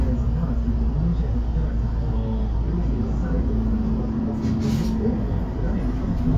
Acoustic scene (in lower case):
bus